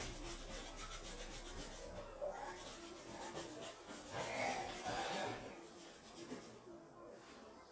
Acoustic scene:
restroom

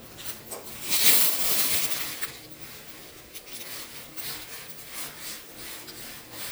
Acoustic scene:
elevator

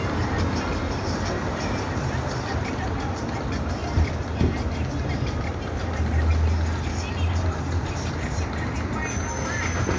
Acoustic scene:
street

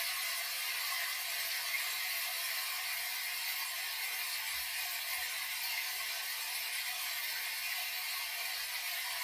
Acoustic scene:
restroom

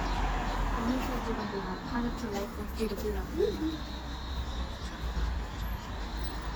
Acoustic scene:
street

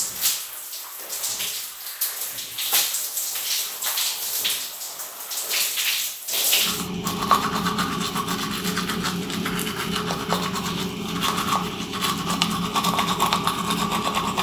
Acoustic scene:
restroom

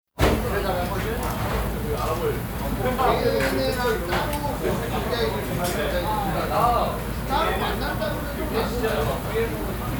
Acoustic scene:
crowded indoor space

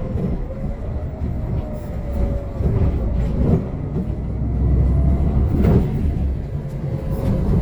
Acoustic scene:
bus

